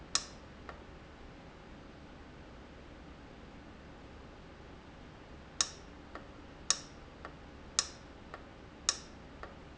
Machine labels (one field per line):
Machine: valve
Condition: abnormal